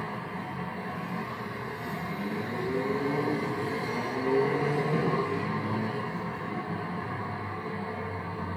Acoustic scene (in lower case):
street